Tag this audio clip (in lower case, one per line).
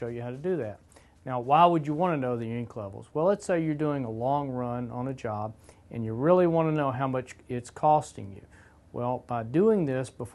speech